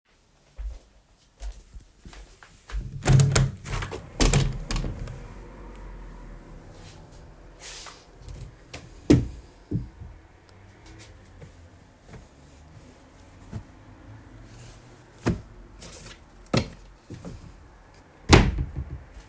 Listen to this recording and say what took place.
I entered the bathroom and flipped the light switch. I walked to the sink and turned on the tap to let the water run for a few seconds before turning it off.